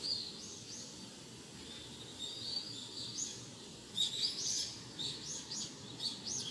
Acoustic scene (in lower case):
park